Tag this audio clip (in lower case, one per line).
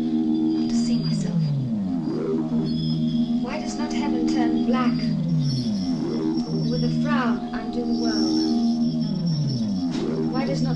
speech
music